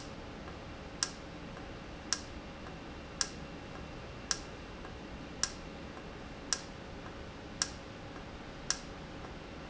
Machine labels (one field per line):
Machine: valve